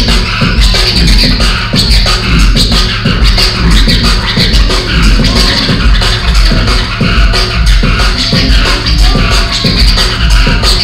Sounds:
electronic music
scratching (performance technique)
music
drum and bass

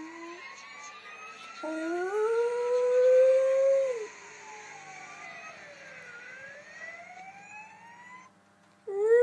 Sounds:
dog howling

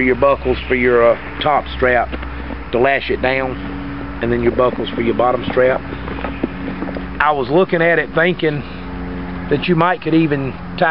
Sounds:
speech
outside, urban or man-made

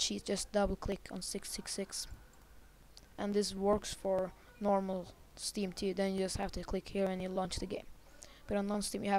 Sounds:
speech

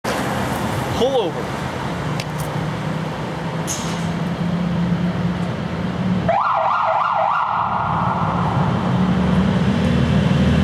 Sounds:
siren
emergency vehicle
ambulance (siren)

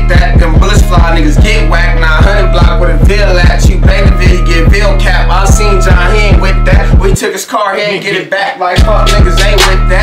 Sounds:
music

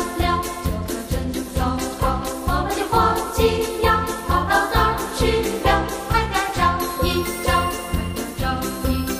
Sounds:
jingle bell

